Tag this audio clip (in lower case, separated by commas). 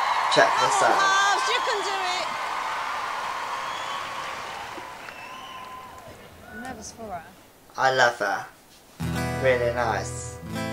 music, speech